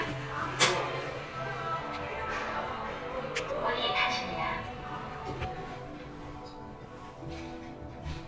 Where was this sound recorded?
in an elevator